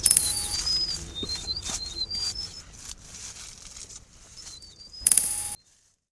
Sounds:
animal, bird call, chirp, bird, wild animals

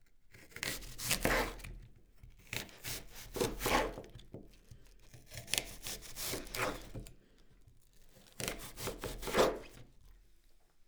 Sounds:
domestic sounds

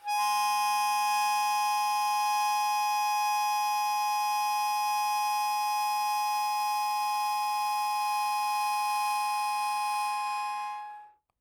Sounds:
musical instrument, harmonica, music

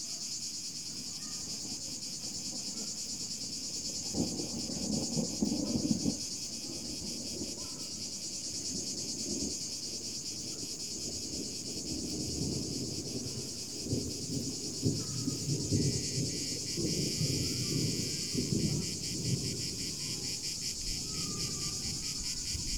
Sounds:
thunder, thunderstorm

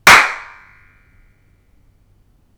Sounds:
clapping, hands

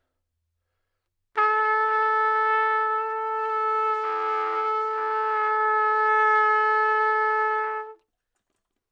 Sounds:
musical instrument, trumpet, music, brass instrument

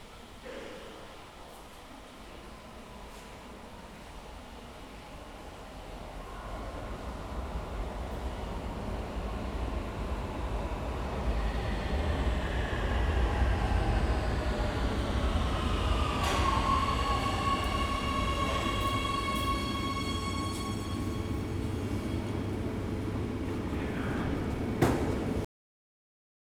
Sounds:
vehicle, rail transport, subway

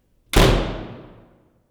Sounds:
slam, home sounds, door

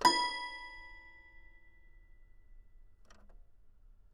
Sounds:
keyboard (musical), music, piano, musical instrument

